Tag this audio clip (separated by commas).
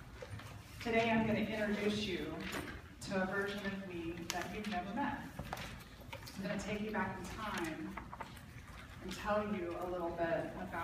Speech